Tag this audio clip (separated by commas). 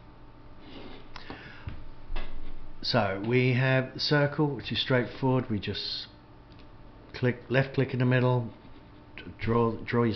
Speech